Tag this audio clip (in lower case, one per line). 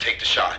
human voice
speech
man speaking